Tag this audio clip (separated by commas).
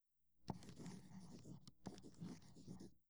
Writing, home sounds